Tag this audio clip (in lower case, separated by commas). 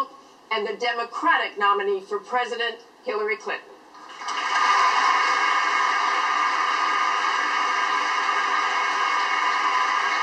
speech